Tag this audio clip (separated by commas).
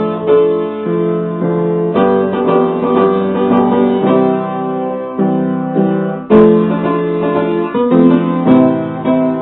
Piano, Keyboard (musical)